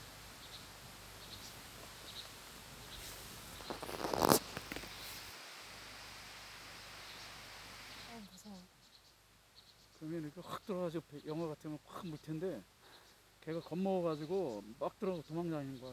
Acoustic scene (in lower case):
park